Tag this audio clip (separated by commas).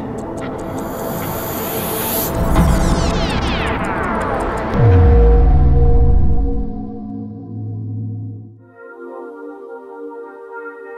Music